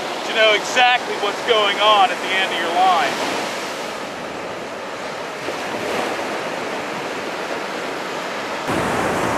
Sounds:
speech, surf, ocean

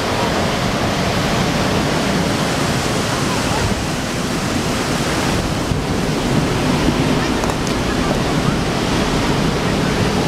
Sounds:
waves, speech

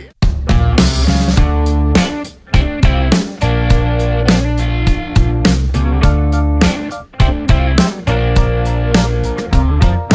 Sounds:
music, sampler

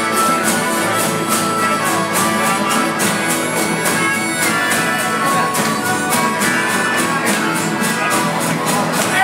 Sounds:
strum, music, musical instrument, electric guitar

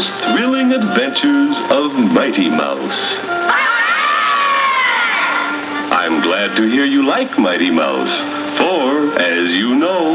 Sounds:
music, speech

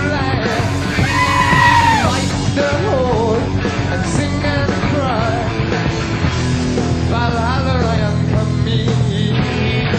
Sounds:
music, screaming

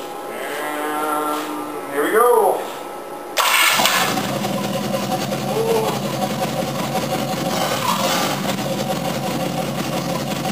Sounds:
speech, engine, heavy engine (low frequency), idling

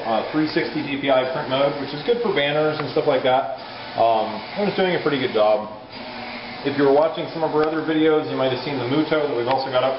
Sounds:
printer, speech

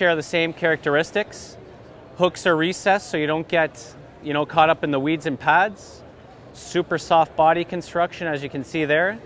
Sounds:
speech

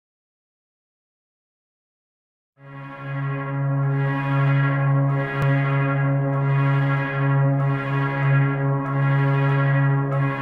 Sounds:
didgeridoo, music

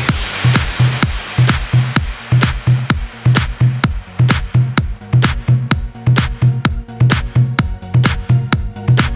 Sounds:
music, house music

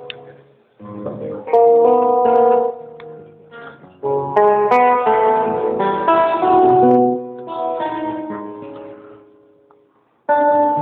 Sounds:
music, plucked string instrument, guitar, musical instrument

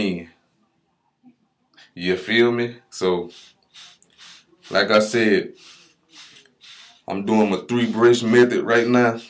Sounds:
speech

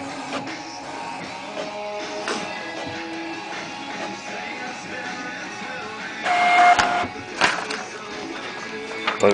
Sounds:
music, speech, printer

